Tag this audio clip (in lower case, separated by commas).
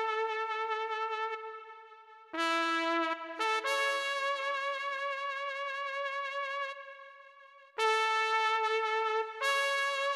piano, music, musical instrument, keyboard (musical)